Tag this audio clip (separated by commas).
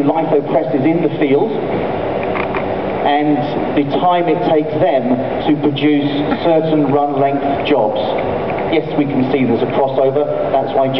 Speech